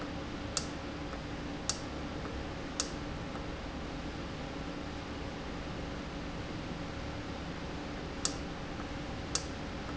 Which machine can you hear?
valve